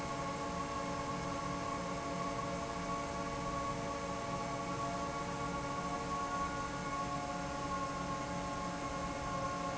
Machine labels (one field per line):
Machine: fan